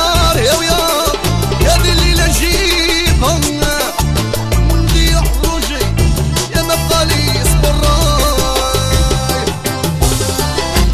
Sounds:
Music, Music of Africa

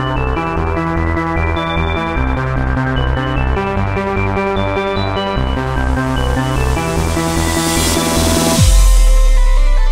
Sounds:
Electronic music, Music, Techno

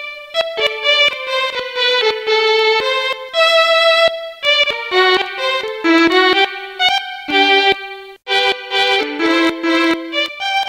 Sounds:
Musical instrument, Music, Violin

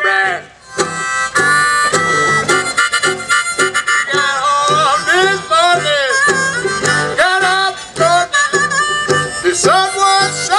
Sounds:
Music

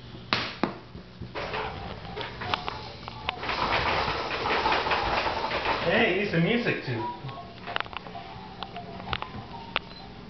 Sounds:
Music, Speech

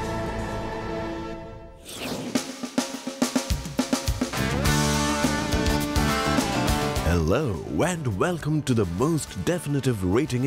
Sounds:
Drum kit, Drum roll

